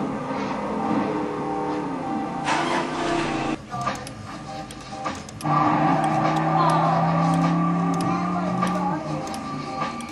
Engines revving up, repeated ticking, music